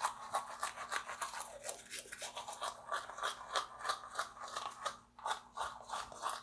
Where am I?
in a restroom